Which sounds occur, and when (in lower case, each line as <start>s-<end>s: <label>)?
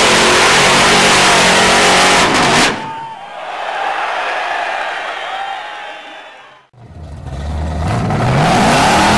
0.0s-2.7s: sound effect
2.8s-3.1s: human sounds
3.1s-6.7s: crowd
6.7s-9.1s: revving